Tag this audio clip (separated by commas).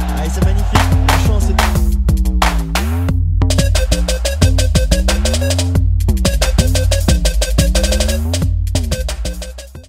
Speech, Music